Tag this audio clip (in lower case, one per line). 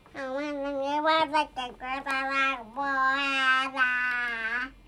speech
human voice